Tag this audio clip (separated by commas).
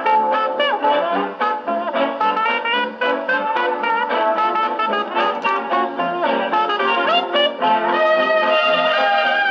Trombone, Music